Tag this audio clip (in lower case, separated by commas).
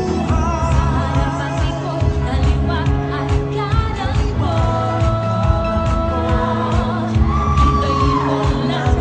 jazz, music, techno